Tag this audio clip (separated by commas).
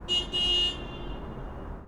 Motor vehicle (road), Car, Vehicle, Alarm, Vehicle horn